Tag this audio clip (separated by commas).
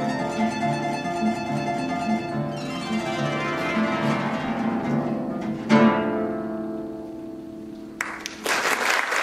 Bowed string instrument, Harp